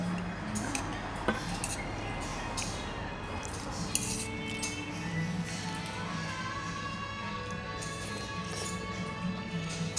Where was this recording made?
in a restaurant